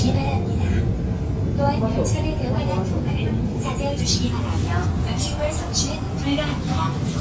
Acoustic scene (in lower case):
subway train